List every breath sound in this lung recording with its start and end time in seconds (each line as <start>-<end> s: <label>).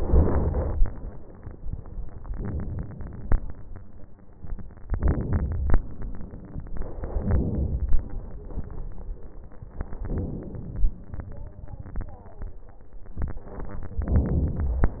0.00-0.87 s: inhalation
2.33-3.32 s: inhalation
4.84-5.83 s: inhalation
6.77-7.76 s: inhalation
9.99-10.98 s: inhalation
14.02-15.00 s: inhalation